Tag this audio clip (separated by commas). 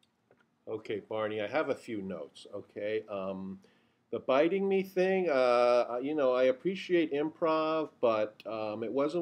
Speech